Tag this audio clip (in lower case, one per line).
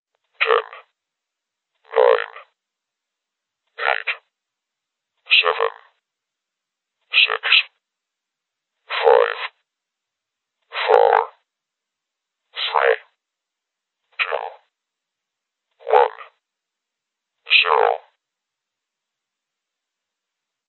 speech
human voice
speech synthesizer